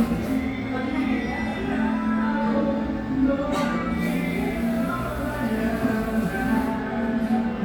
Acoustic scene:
cafe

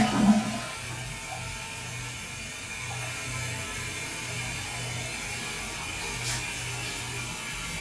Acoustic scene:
restroom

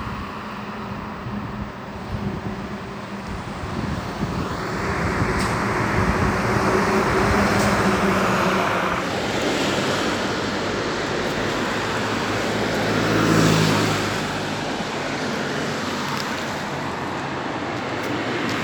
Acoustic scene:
street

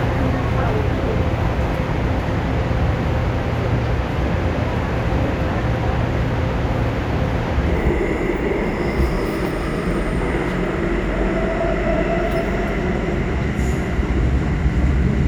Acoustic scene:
subway train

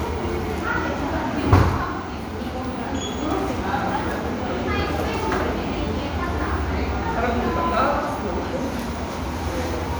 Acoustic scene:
crowded indoor space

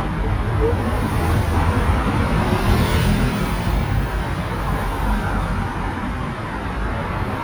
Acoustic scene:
street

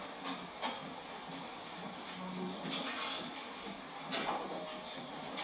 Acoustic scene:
cafe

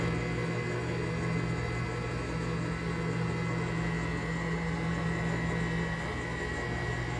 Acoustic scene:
kitchen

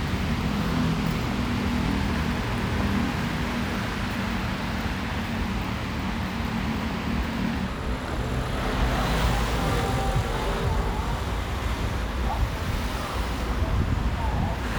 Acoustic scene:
street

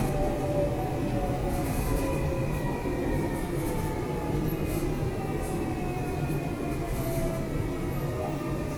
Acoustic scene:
subway station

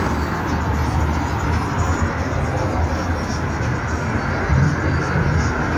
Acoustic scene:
street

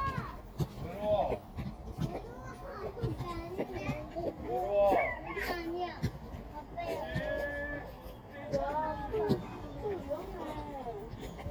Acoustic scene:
park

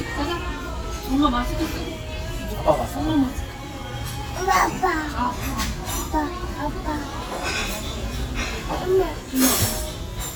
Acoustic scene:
restaurant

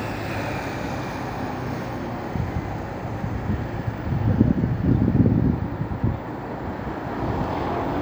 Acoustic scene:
street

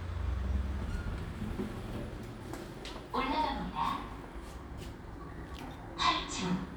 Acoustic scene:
elevator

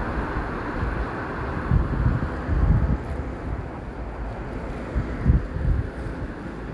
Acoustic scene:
street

